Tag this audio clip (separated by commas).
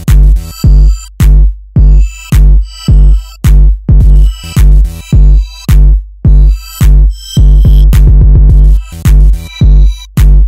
Music